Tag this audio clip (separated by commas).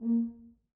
Brass instrument, Musical instrument, Music